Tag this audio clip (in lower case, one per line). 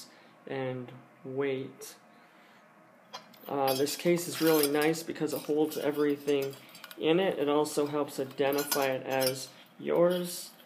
eating with cutlery